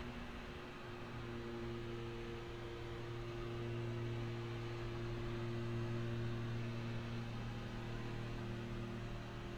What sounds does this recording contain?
background noise